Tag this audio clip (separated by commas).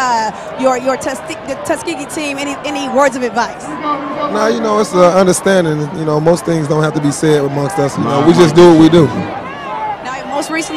inside a public space, Speech